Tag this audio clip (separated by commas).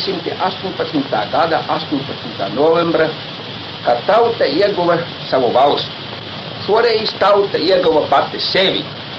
Radio, Speech